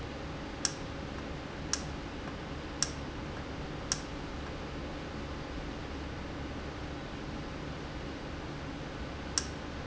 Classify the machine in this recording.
valve